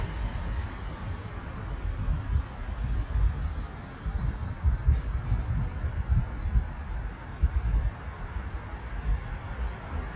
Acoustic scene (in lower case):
street